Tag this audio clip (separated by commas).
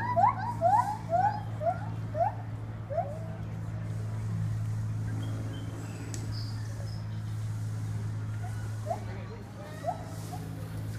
gibbon howling